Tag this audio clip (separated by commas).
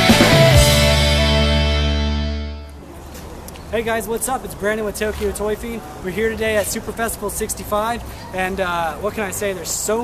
Music, Speech